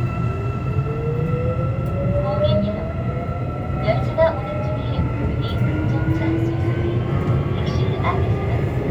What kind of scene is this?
subway train